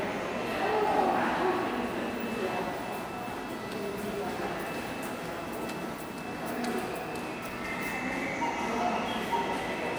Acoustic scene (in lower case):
subway station